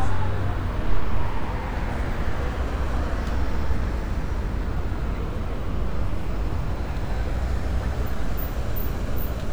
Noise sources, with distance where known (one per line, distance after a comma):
large-sounding engine, far